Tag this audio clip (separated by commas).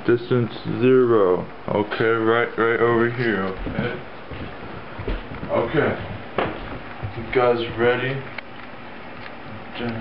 Speech